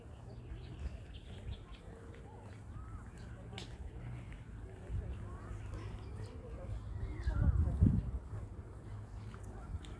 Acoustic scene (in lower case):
park